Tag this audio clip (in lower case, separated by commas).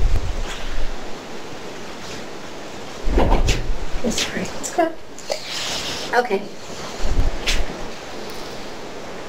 speech, inside a small room